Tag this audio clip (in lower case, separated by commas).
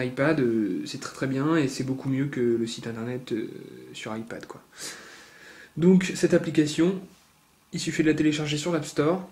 speech